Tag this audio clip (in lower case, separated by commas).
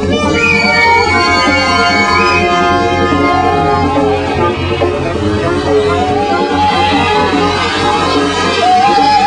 music